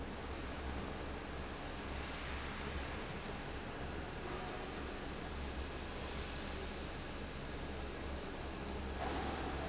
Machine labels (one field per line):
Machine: fan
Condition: abnormal